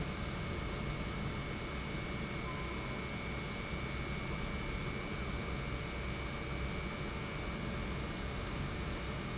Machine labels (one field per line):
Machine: pump